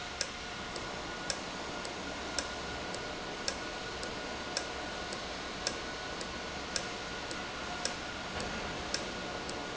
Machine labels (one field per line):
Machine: valve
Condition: normal